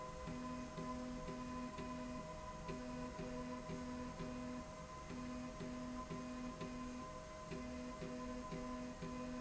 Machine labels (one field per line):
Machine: slide rail